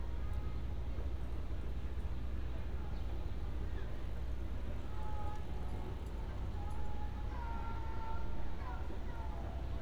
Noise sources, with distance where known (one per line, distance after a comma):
music from an unclear source